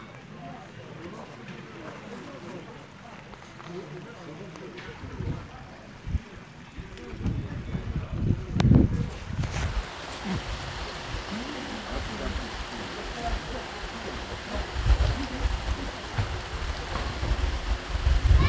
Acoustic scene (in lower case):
park